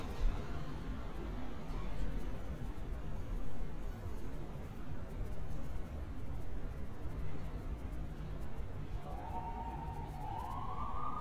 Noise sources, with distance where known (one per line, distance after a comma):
siren, far